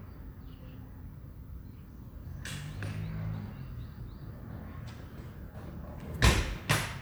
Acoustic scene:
residential area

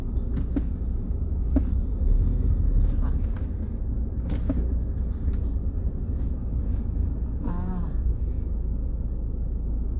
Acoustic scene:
car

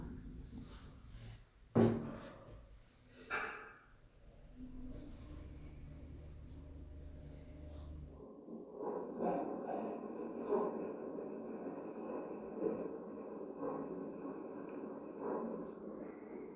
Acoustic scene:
elevator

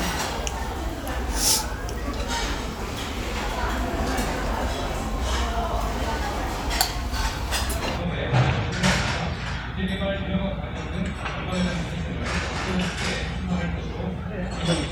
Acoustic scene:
restaurant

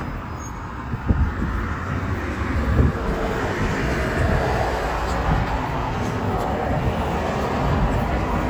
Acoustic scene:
street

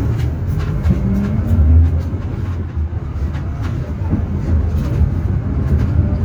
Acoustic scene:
bus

